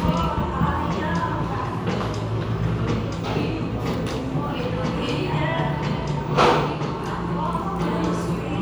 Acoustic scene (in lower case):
cafe